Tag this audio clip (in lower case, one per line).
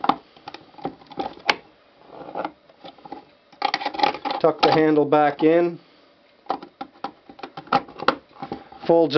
speech
inside a small room